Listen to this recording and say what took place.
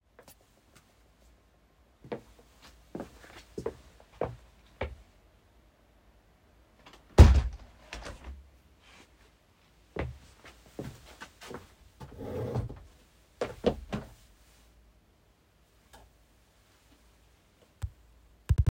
i walked upto the already opened window, closed the window, walked back to my chair, pulled the chair back, sat down